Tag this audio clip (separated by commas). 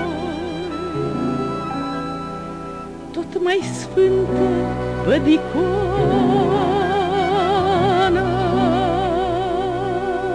Music